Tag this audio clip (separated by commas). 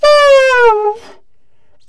Wind instrument, Musical instrument, Music